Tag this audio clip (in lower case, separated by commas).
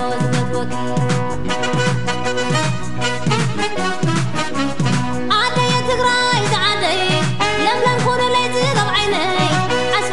music, female singing